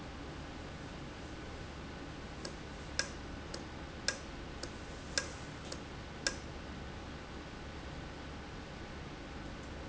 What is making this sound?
valve